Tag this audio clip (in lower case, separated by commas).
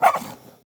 pets, animal, dog